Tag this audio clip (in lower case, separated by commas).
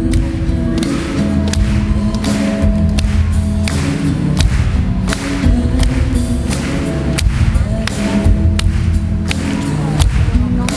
music